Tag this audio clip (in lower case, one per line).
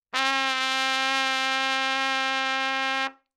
trumpet
music
brass instrument
musical instrument